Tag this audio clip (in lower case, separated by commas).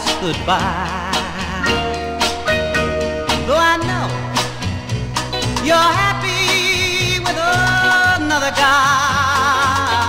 music